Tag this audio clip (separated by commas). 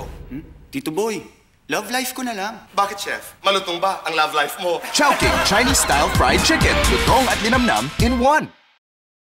Music, Speech